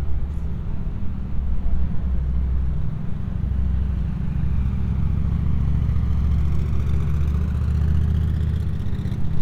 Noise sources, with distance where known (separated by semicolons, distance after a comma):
medium-sounding engine, near